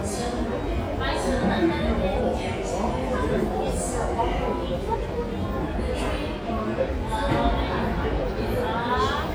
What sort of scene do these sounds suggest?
subway station